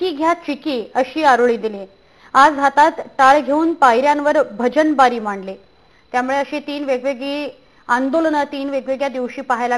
Women speaking continuously